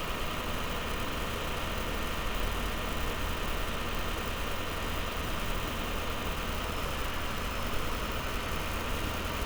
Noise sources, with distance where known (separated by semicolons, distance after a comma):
engine of unclear size